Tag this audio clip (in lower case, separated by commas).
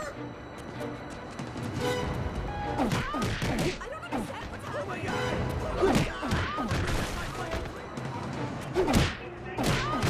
music, speech